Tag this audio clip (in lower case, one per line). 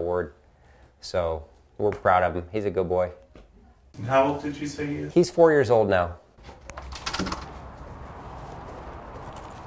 speech